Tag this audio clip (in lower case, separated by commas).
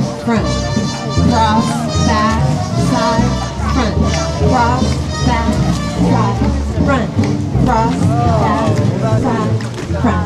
music, speech